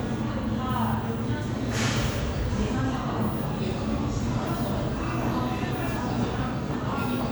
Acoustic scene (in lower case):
crowded indoor space